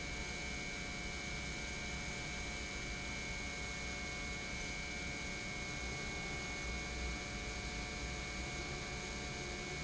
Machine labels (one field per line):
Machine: pump